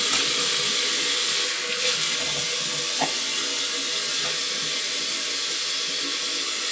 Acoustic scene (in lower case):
restroom